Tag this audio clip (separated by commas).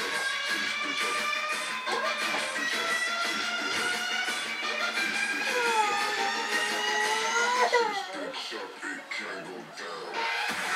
Music, Electronic music, Dubstep